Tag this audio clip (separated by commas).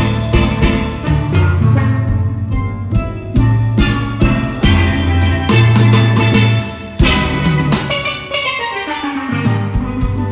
playing steelpan